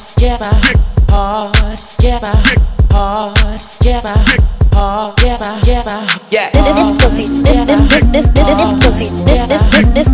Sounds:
Exciting music, Theme music, Pop music, Music

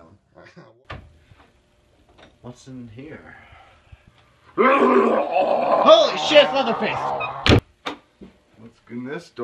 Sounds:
inside a small room, Speech

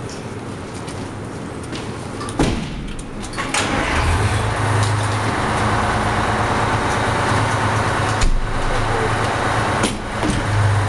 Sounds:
Speech

